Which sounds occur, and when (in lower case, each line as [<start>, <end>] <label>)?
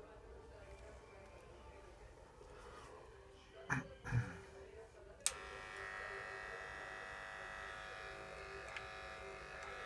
[0.00, 2.08] man speaking
[0.00, 5.23] background noise
[0.00, 9.85] television
[0.01, 1.87] music
[0.66, 0.80] generic impact sounds
[1.20, 1.41] generic impact sounds
[2.37, 2.46] tap
[2.47, 3.15] surface contact
[2.88, 4.80] music
[3.31, 3.49] surface contact
[3.50, 8.58] man speaking
[3.68, 3.85] human voice
[4.01, 4.36] human voice
[4.37, 4.98] surface contact
[5.21, 5.31] tick
[5.27, 9.85] electric shaver
[5.61, 5.83] surface contact
[5.70, 5.79] generic impact sounds
[8.66, 8.76] generic impact sounds
[9.57, 9.65] generic impact sounds
[9.58, 9.85] man speaking